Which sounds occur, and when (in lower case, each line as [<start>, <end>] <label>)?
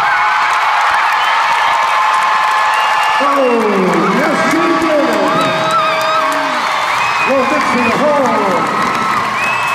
[0.00, 9.74] crowd
[0.01, 9.74] shout
[0.05, 9.74] applause
[2.75, 3.85] whistling
[3.21, 5.34] male speech
[6.96, 7.89] whistling
[7.22, 8.53] male speech
[9.34, 9.74] whistling